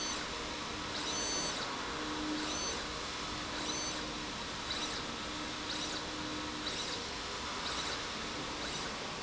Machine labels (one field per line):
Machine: slide rail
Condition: abnormal